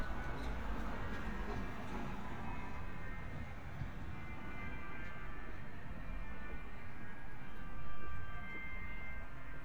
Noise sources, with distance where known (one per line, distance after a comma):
engine of unclear size
music from an unclear source, far